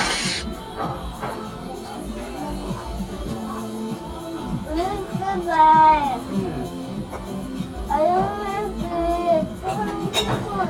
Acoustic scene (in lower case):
restaurant